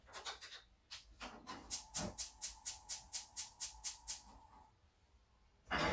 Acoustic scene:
kitchen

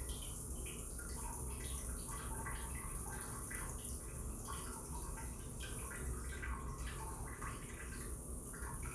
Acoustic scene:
restroom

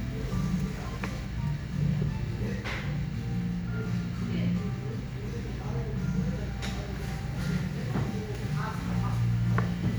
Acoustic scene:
cafe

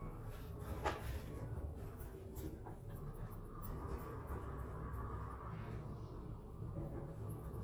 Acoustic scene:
elevator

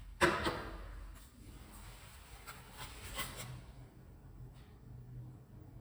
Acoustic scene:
elevator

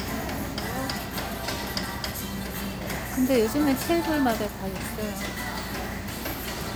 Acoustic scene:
restaurant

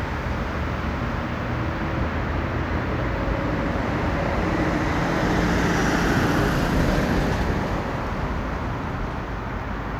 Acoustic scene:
street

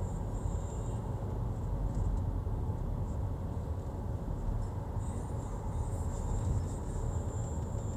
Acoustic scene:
car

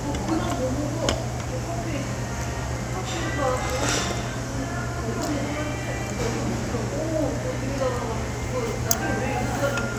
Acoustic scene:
restaurant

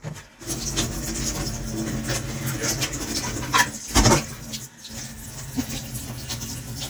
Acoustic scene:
kitchen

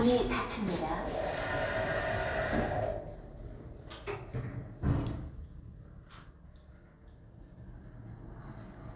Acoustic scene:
elevator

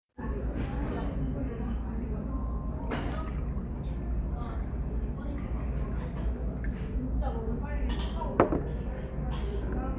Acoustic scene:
restaurant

